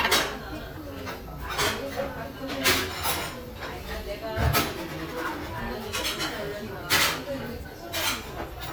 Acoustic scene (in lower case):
restaurant